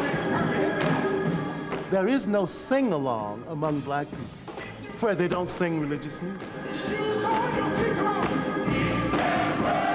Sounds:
speech, music, gospel music

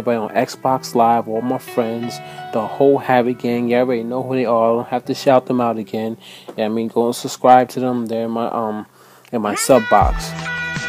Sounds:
music, speech

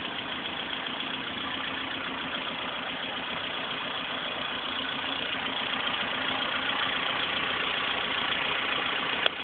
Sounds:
vehicle, idling, engine

